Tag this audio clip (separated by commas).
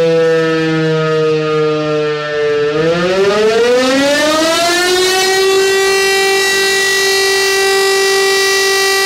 Siren, Civil defense siren